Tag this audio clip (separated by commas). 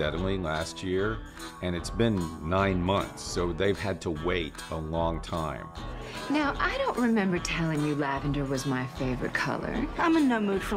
Speech, inside a small room, Music